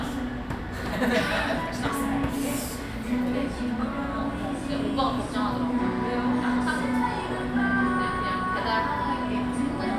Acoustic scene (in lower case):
cafe